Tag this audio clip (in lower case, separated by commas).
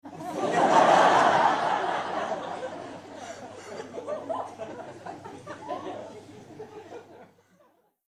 crowd, laughter, human voice, human group actions